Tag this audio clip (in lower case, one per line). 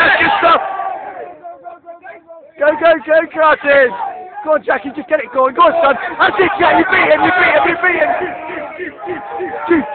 speech